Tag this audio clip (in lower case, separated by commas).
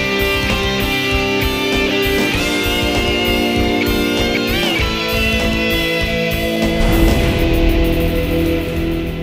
plucked string instrument, acoustic guitar, musical instrument, music, strum